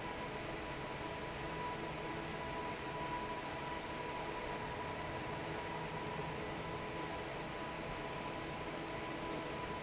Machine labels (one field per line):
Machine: fan